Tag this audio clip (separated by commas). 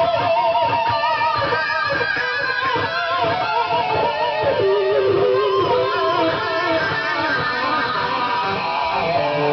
Music, Musical instrument, Plucked string instrument, Bass guitar, Guitar